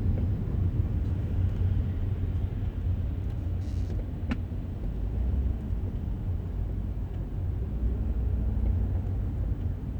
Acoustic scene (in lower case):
car